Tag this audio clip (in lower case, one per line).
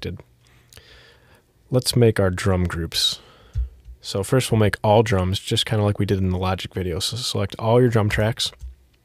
speech